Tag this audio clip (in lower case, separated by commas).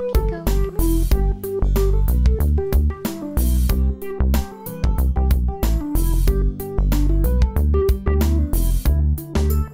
music